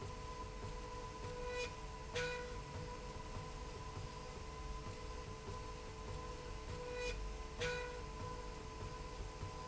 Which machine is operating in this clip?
slide rail